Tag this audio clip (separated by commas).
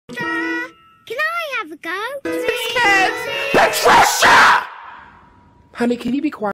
Speech, Music